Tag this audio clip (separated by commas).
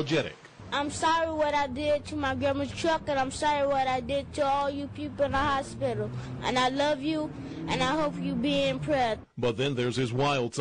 Speech